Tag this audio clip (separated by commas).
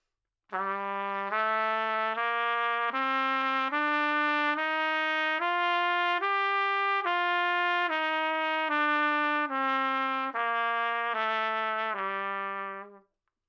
Music, Musical instrument, Trumpet, Brass instrument